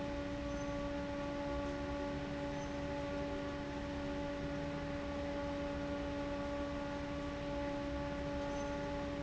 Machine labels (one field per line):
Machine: fan